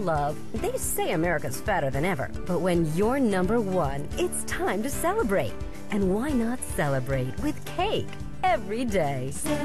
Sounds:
music, speech

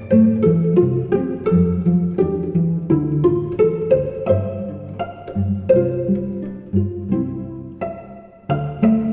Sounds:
cello, music, musical instrument

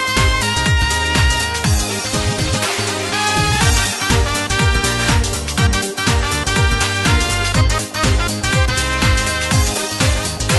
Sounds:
music, exciting music

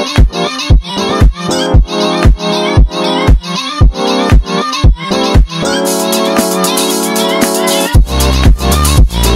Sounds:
music, sampler

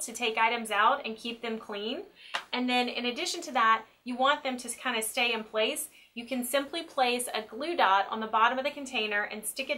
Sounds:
speech

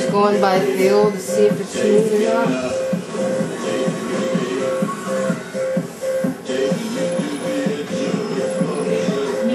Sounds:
music, speech, inside a small room

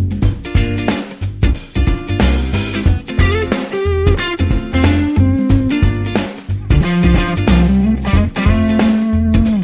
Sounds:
acoustic guitar, guitar, music, electric guitar, bass guitar, playing bass guitar, musical instrument, strum, plucked string instrument

